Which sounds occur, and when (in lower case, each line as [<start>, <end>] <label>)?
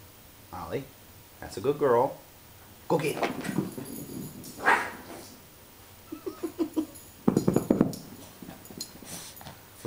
[0.00, 9.85] mechanisms
[0.44, 0.86] male speech
[1.36, 2.11] male speech
[2.85, 3.15] male speech
[2.95, 3.00] tick
[2.95, 3.80] generic impact sounds
[3.57, 4.53] pant (dog)
[4.52, 4.98] bark
[4.98, 5.39] pant (dog)
[6.02, 6.83] laughter
[7.22, 7.99] generic impact sounds
[7.87, 9.59] pant (dog)
[8.72, 8.77] tick